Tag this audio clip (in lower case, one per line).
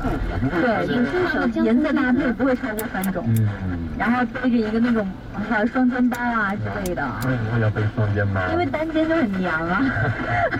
speech
car
vehicle